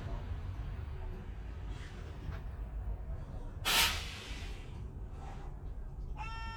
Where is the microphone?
on a bus